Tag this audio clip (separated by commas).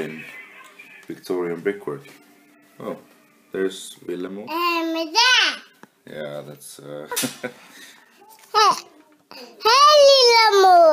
Speech